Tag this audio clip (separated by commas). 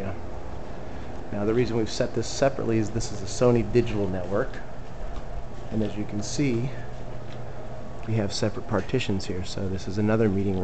Speech